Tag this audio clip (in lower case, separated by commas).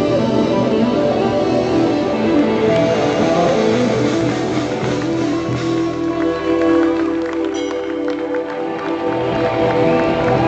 rock music, music, heavy metal